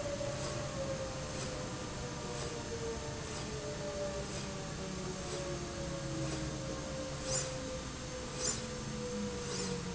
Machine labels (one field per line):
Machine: slide rail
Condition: normal